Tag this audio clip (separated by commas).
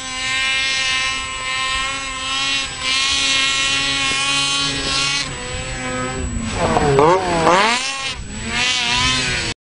Vehicle